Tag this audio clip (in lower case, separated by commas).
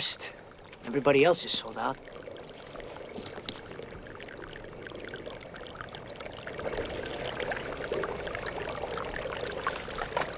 water, speech